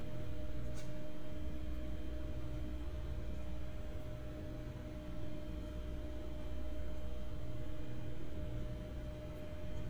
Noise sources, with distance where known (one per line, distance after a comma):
background noise